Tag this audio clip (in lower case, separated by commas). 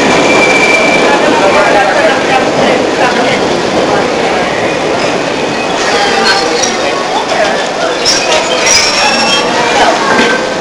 metro, vehicle, rail transport